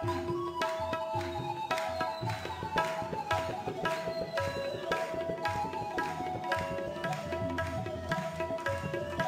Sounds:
tabla, music

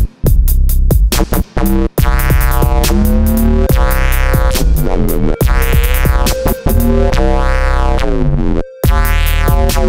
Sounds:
electronic music, synthesizer, music, dubstep

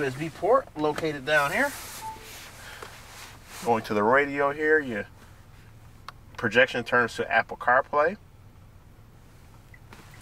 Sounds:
speech

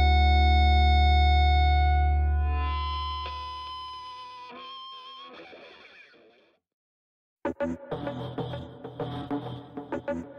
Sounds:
inside a small room, effects unit, music

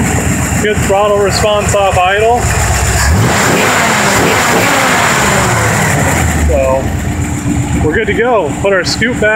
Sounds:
engine, vehicle, car, speech

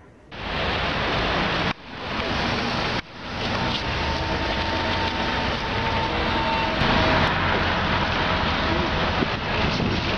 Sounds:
vehicle

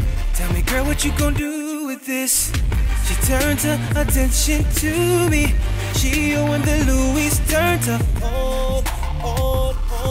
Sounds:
rhythm and blues, music

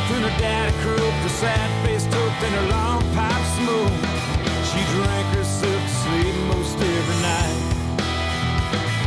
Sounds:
music

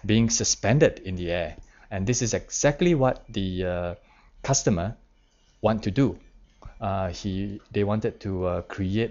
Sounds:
narration, speech

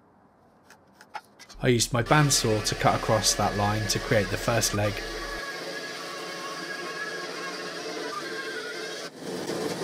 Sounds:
speech, wood

